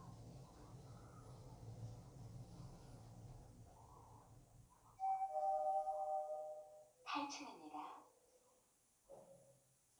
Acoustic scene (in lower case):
elevator